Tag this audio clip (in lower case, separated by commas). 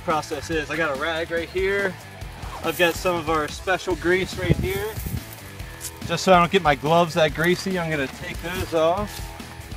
music, speech